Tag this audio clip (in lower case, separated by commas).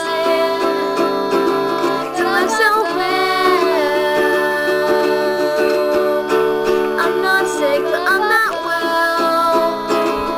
musical instrument, guitar, music, inside a small room, plucked string instrument